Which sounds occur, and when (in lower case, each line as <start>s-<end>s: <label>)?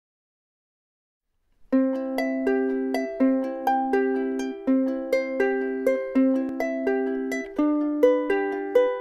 1.1s-9.0s: background noise
1.4s-1.5s: tick
1.6s-9.0s: music